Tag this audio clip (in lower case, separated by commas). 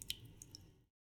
water, raindrop, rain